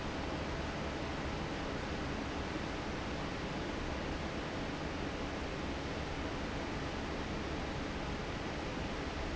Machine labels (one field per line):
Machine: fan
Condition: normal